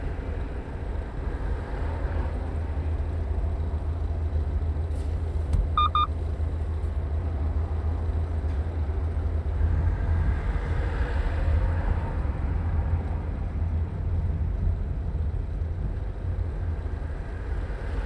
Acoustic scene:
car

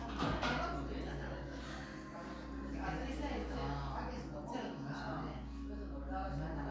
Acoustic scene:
crowded indoor space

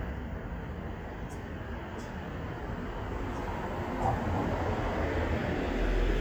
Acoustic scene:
street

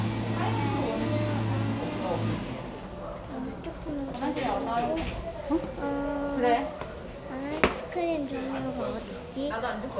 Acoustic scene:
cafe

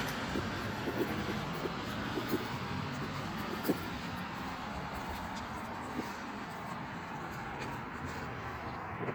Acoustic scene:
street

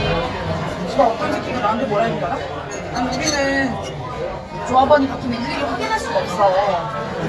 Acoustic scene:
crowded indoor space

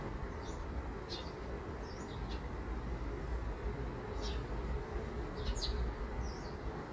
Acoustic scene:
park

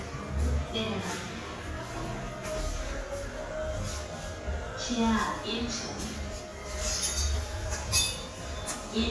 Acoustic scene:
elevator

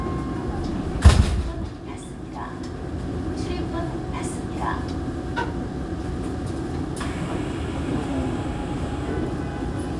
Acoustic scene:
subway train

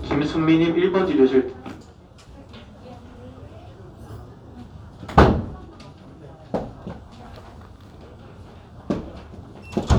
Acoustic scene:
crowded indoor space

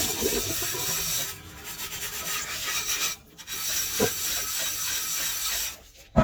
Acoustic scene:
kitchen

